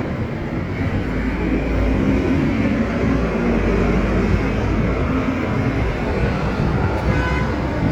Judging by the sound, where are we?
on a street